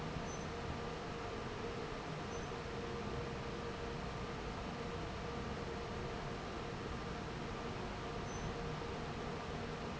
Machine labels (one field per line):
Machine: fan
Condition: normal